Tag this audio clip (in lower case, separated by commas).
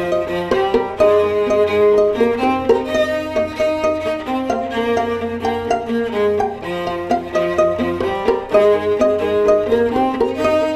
violin, pizzicato, bowed string instrument